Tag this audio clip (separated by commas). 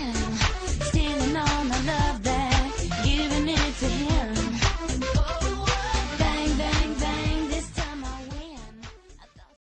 Music